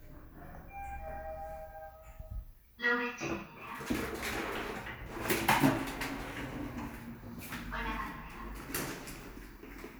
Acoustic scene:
elevator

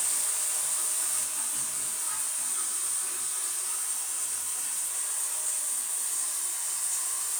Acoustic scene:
restroom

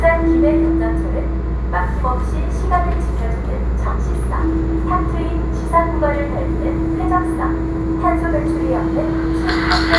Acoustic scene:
subway train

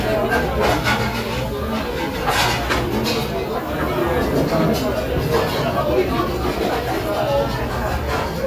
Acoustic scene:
restaurant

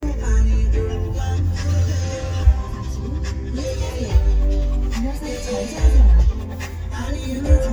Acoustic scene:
car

